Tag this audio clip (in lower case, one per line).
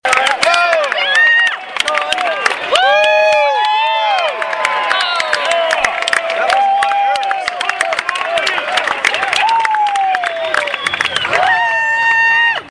human group actions
cheering